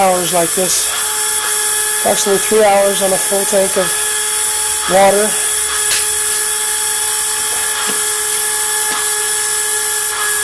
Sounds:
Steam

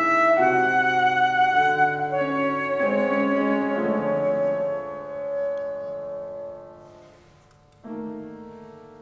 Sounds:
Musical instrument, Piano, playing piano, Brass instrument, Classical music, Music, Saxophone

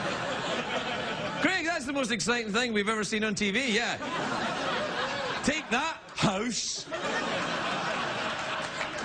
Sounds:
Speech

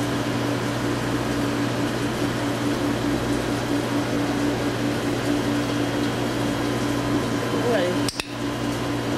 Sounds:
Speech

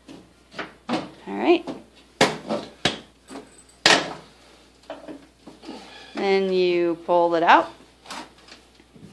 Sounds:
Speech, inside a small room

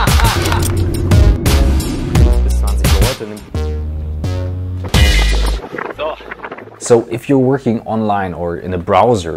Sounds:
Speech, Music

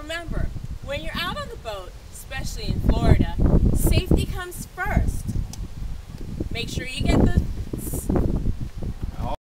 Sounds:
Speech

